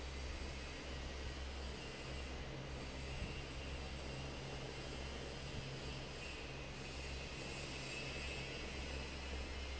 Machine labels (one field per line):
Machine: fan